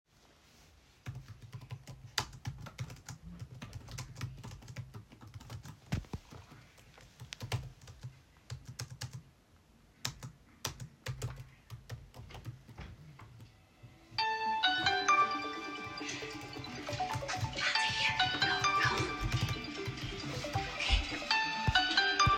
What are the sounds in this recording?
keyboard typing, phone ringing